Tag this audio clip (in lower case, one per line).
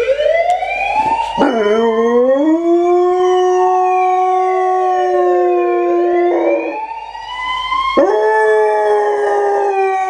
dog baying